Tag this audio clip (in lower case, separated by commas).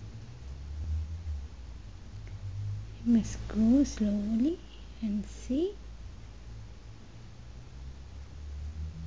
speech, whispering